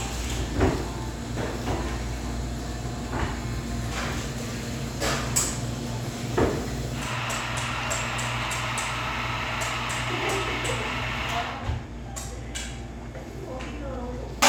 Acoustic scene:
cafe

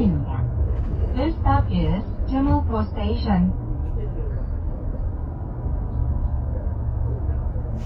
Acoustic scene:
bus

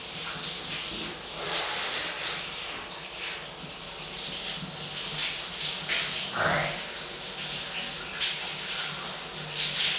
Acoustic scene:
restroom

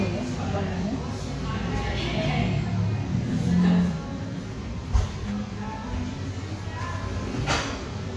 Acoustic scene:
cafe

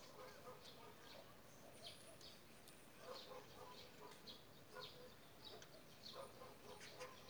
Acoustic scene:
park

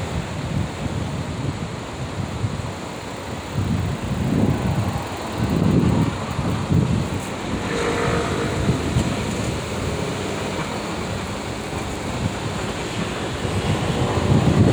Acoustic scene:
street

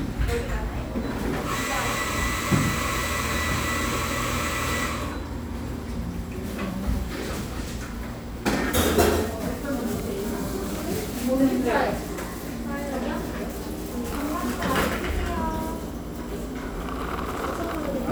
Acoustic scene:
cafe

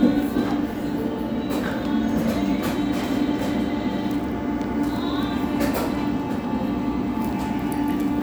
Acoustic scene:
cafe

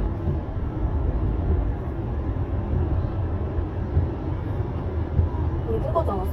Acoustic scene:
car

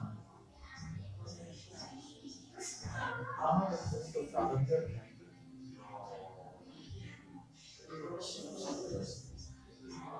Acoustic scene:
crowded indoor space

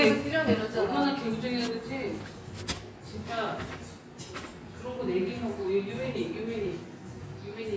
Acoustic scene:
cafe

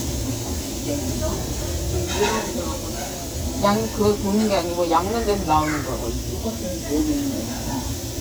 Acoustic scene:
restaurant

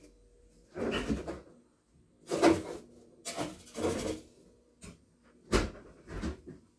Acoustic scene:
kitchen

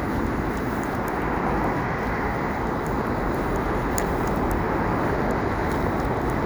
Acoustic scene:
street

